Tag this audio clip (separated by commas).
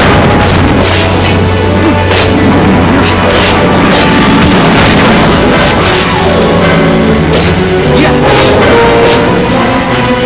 Music